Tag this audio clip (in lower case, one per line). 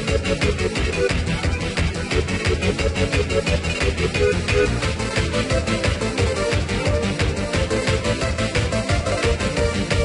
soundtrack music
exciting music
music